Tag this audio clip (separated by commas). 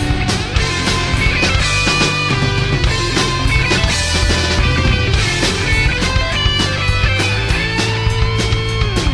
Strum, Plucked string instrument, Music, Bass guitar, Electric guitar, Musical instrument, Guitar